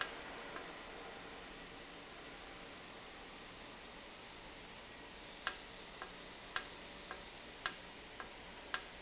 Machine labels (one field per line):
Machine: valve